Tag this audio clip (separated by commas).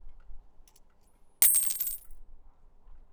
Domestic sounds, Coin (dropping)